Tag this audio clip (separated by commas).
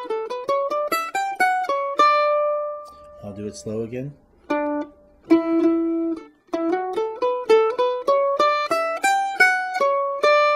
Mandolin, Speech, Music